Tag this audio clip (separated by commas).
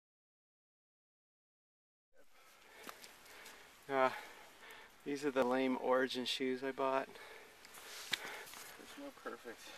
footsteps, Speech